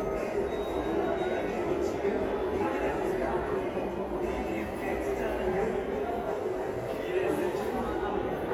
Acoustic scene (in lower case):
subway station